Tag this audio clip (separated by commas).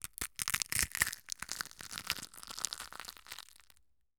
Crushing